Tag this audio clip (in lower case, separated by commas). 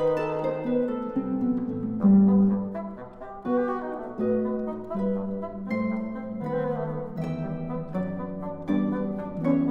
bowed string instrument, playing harp, harp, musical instrument, music